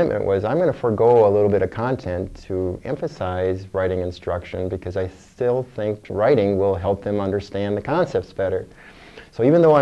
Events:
0.0s-9.8s: background noise
0.0s-2.3s: male speech
2.5s-5.0s: male speech
5.4s-8.6s: male speech
9.3s-9.8s: male speech

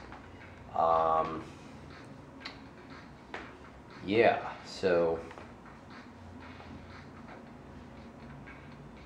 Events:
0.0s-9.0s: mechanisms
0.0s-9.0s: music
0.0s-9.0s: video game sound
0.1s-0.1s: generic impact sounds
0.4s-0.4s: generic impact sounds
0.7s-1.4s: human voice
1.2s-1.3s: generic impact sounds
1.4s-1.9s: surface contact
2.4s-2.5s: tick
3.3s-3.4s: generic impact sounds
4.0s-4.4s: male speech
4.6s-5.2s: male speech
5.3s-5.4s: generic impact sounds

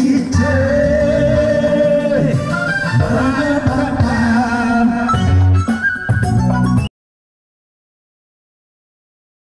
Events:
0.0s-2.4s: male singing
0.0s-6.9s: music
3.0s-5.1s: male singing

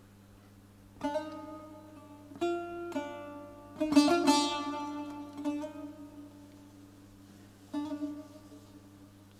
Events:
0.0s-9.3s: mechanisms
0.3s-0.5s: surface contact
1.0s-9.3s: music
1.3s-1.4s: tick
4.8s-4.9s: tick
5.0s-5.1s: tick
5.3s-5.4s: tick
5.6s-5.6s: tick
6.5s-6.5s: tick
7.2s-7.5s: surface contact

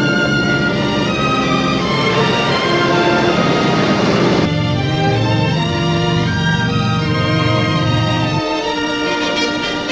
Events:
0.0s-8.4s: aircraft
0.0s-9.9s: music

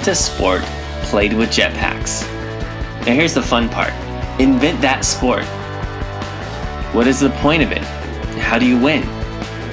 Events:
0.0s-0.7s: man speaking
0.0s-9.7s: music
1.1s-2.3s: man speaking
3.1s-3.9s: man speaking
4.4s-5.5s: man speaking
6.9s-7.9s: man speaking
8.4s-9.1s: man speaking

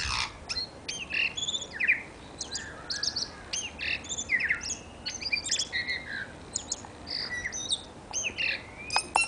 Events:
0.0s-9.2s: wind
8.8s-9.2s: bird song
9.1s-9.2s: tap

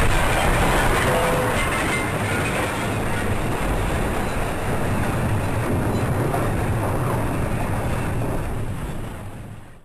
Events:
0.0s-9.8s: explosion

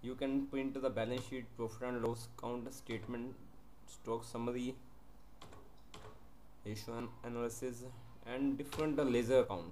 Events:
0.0s-1.5s: male speech
0.0s-9.7s: mechanisms
1.1s-1.3s: computer keyboard
1.6s-3.4s: male speech
2.0s-2.1s: tick
2.8s-3.1s: computer keyboard
2.9s-3.3s: speech
3.9s-4.8s: male speech
5.4s-5.7s: computer keyboard
5.9s-6.3s: computer keyboard
6.6s-8.0s: male speech
6.6s-7.1s: speech
7.8s-8.3s: speech
8.2s-9.7s: male speech
8.6s-8.9s: computer keyboard

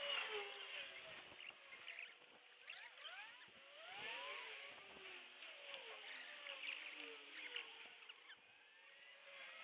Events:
0.0s-9.6s: sound effect

